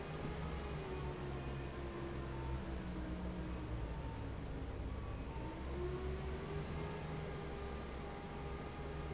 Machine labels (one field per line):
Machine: fan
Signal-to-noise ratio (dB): 0 dB